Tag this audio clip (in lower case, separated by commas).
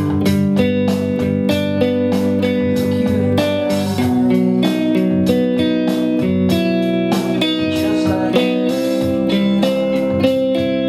acoustic guitar, strum, electric guitar, playing electric guitar, music, guitar, plucked string instrument, musical instrument